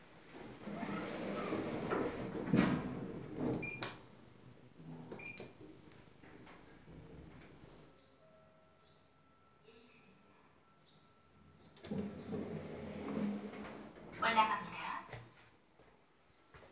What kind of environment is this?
elevator